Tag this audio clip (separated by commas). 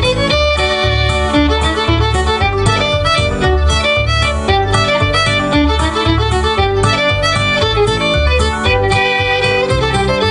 Bowed string instrument, Violin, Musical instrument, Classical music, Music